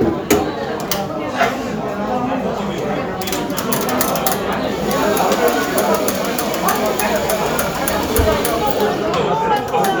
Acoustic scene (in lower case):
cafe